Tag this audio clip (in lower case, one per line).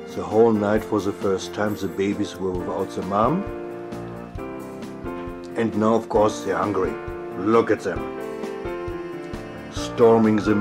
speech
music